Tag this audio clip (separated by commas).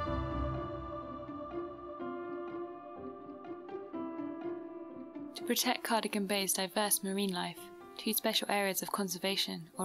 Speech, Music